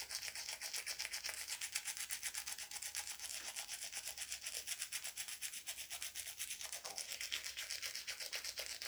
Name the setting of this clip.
restroom